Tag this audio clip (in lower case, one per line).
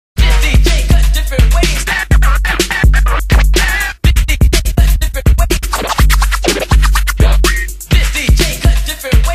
music